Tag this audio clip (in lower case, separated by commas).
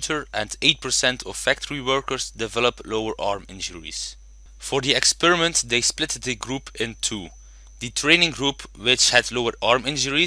speech